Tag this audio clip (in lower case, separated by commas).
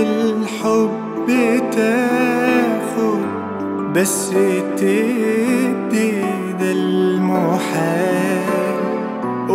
music